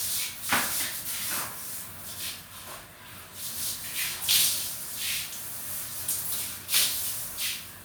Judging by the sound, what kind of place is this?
restroom